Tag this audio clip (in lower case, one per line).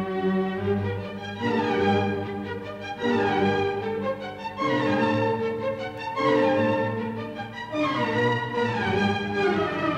orchestra
music